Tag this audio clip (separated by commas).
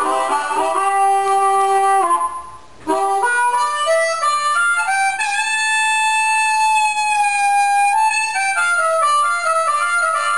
Harmonica, Wind instrument